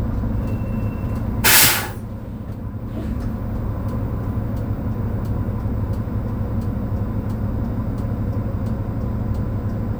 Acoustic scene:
bus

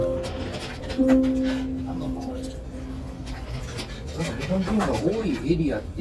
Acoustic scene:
restaurant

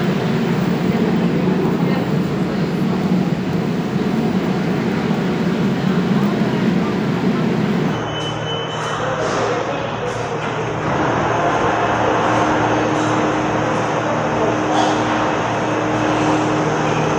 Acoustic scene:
subway station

